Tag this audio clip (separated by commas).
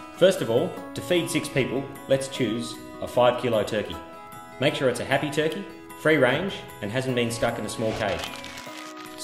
Speech, Music